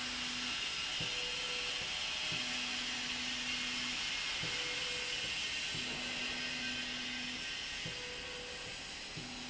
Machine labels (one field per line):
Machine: slide rail